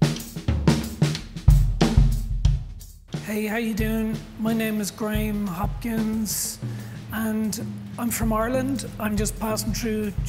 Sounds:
music, drum kit, speech, musical instrument

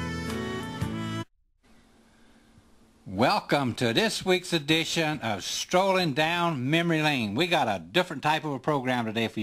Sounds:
speech, music

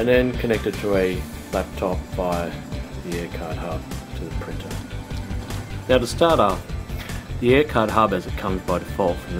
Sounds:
speech, music

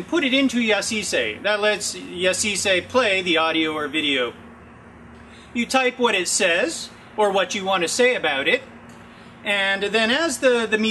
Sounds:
speech

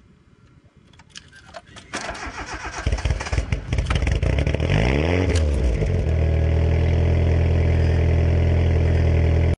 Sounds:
car, speech, vehicle

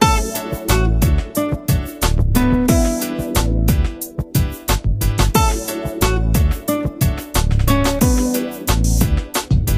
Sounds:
music

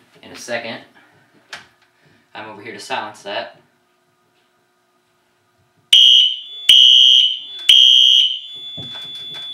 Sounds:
fire alarm, speech

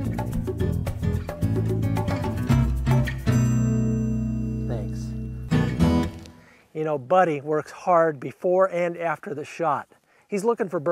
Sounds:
music, speech

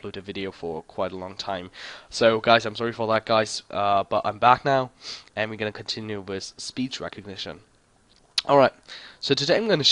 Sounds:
speech

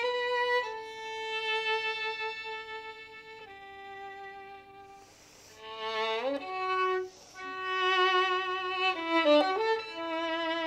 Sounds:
fiddle, musical instrument, music

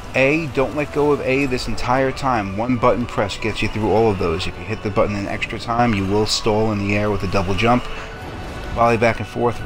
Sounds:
speech

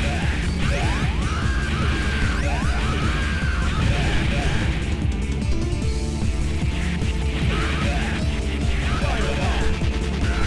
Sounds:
speech, music

